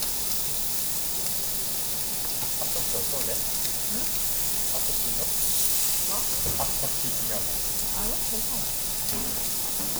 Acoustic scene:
restaurant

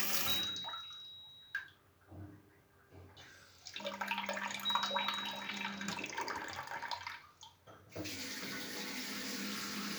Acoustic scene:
restroom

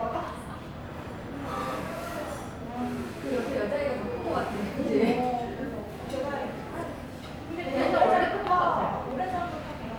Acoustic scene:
restaurant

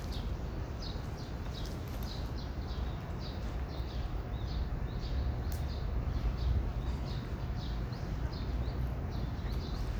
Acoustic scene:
park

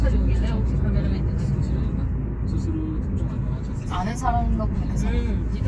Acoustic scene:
car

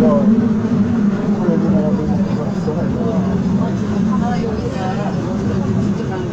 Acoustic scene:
subway train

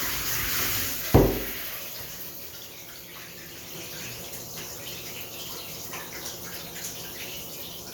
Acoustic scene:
restroom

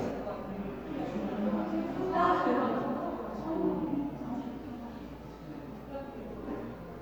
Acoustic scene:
crowded indoor space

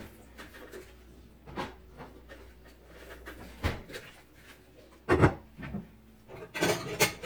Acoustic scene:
kitchen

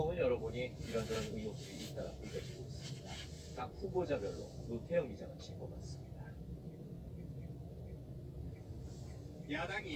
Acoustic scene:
car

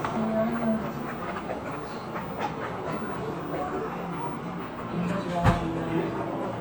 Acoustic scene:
cafe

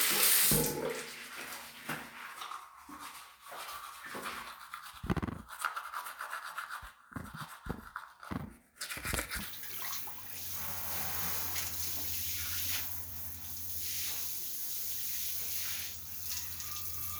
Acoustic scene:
restroom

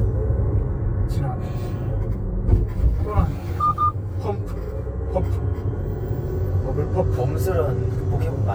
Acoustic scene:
car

